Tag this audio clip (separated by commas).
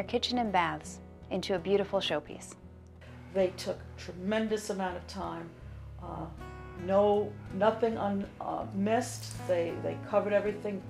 Music, Speech